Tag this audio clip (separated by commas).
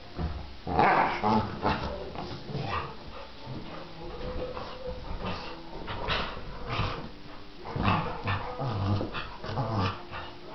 Whimper (dog), Yip, pets, Animal, Dog